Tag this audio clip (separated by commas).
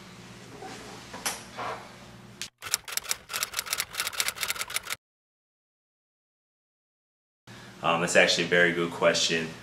Speech, inside a small room